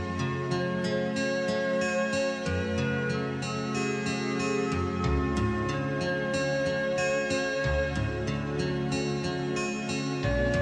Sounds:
Music

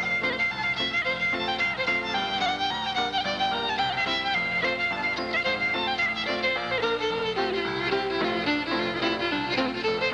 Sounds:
Musical instrument, Violin, Music

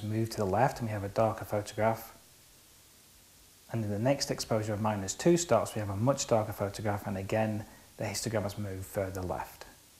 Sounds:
Speech, inside a small room

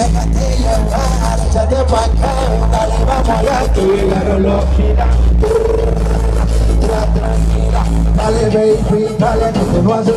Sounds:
Music

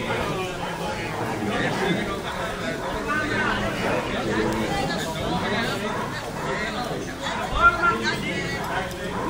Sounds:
Speech, Animal, Domestic animals

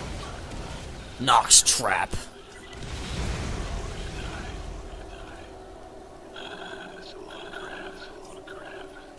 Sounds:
Speech

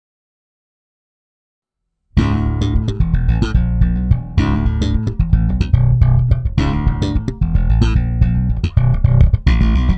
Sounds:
Music, Sampler

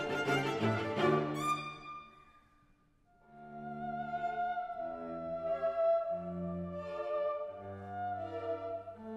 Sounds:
playing theremin

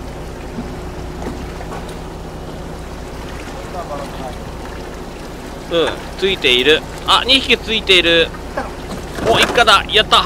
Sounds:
Speech, Vehicle, Boat, sailing ship

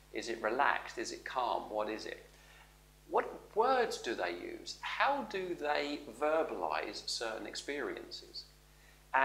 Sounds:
inside a small room, Speech

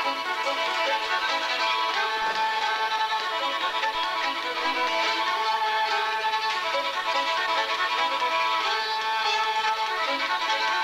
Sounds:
fiddle, Music, Musical instrument

